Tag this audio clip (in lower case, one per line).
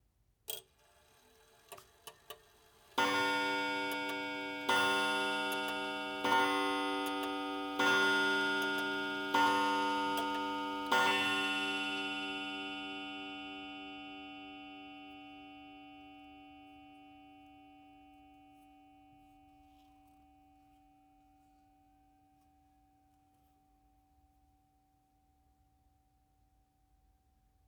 clock
mechanisms